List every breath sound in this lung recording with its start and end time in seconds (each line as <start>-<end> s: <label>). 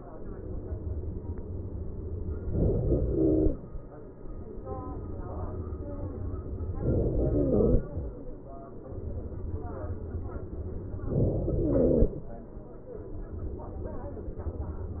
2.48-3.15 s: inhalation
3.15-3.92 s: exhalation
6.77-7.29 s: inhalation
7.29-8.34 s: exhalation
11.05-11.58 s: inhalation
11.60-12.17 s: exhalation